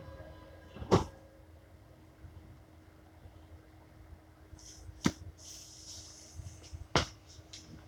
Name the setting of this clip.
subway train